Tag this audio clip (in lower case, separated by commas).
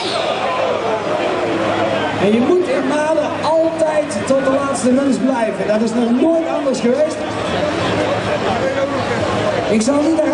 speech